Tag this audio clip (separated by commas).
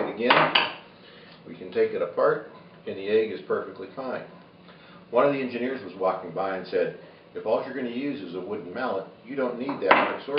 Speech